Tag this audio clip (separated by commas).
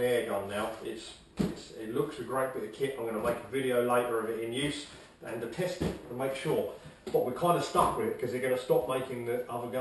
Speech